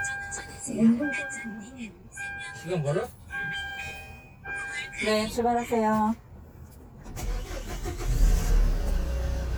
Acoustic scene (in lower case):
car